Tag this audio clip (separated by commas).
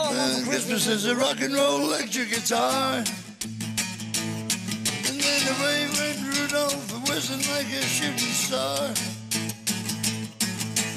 Music